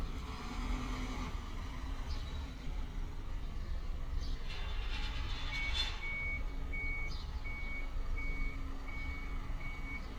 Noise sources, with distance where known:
reverse beeper, near

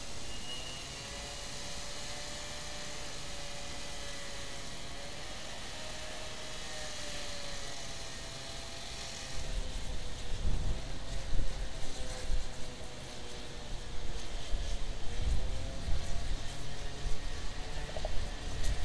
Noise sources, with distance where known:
small or medium rotating saw

